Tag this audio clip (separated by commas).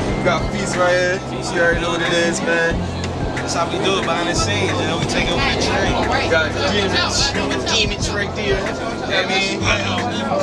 Speech, Music